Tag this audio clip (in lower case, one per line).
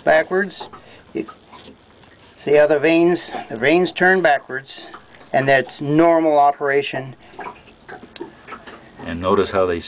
speech